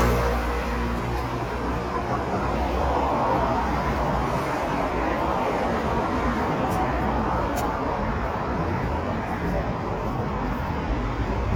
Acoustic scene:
street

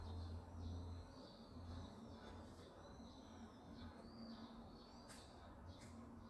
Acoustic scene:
park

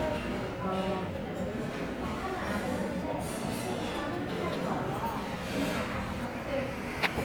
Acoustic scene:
restaurant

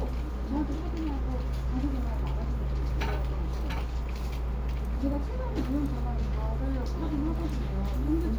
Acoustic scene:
crowded indoor space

